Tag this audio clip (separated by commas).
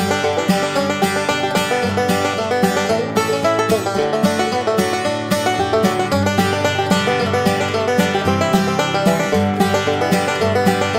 Music